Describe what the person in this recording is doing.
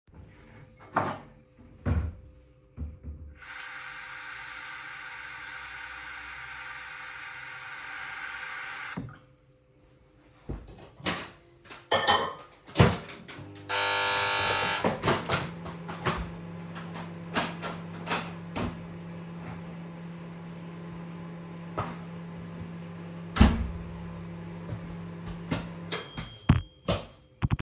I was heating up some water to drink, and my flatmate came home (she forgot her keys).